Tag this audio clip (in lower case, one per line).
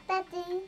speech
human voice
kid speaking